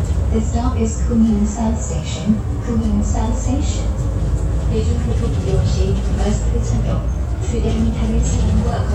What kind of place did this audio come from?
bus